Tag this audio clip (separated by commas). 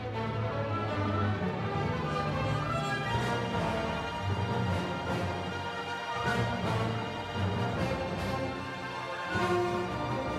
Music, Musical instrument, Violin